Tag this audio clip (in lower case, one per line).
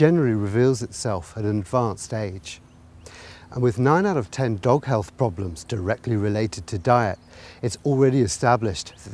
speech